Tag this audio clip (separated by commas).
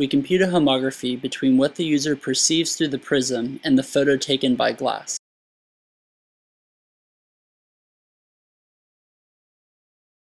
Speech